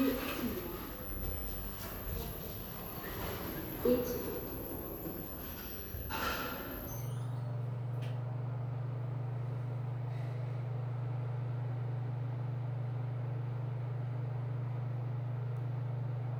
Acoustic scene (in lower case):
elevator